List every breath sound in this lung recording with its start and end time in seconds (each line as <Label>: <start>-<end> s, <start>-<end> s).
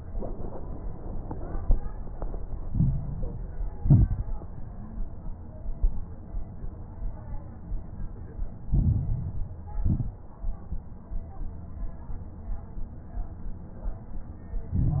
Inhalation: 2.66-3.78 s, 8.68-9.80 s, 14.69-15.00 s
Exhalation: 3.80-4.28 s, 9.82-10.31 s
Crackles: 2.66-3.78 s, 3.80-4.28 s, 8.68-9.80 s, 9.82-10.31 s